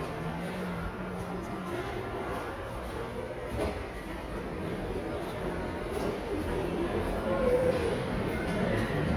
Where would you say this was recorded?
in a subway station